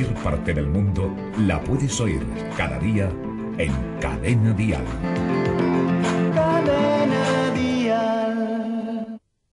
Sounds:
speech
television
music

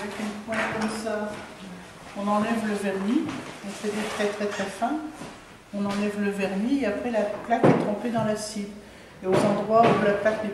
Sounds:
speech

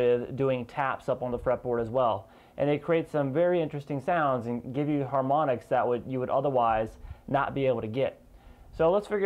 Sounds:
speech

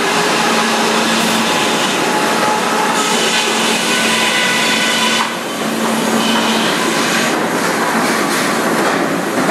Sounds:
sawing

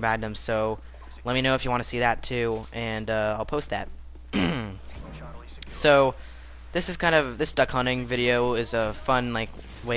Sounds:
speech

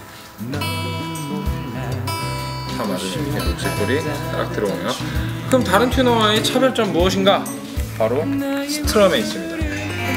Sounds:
speech
electronic tuner
music

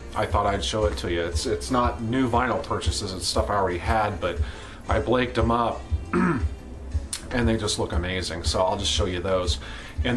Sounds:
speech
background music
music

